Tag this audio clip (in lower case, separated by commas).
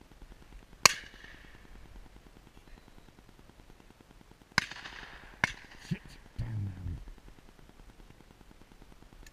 speech